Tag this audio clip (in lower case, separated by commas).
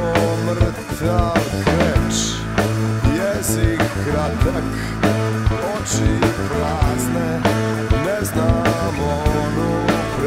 rock music, music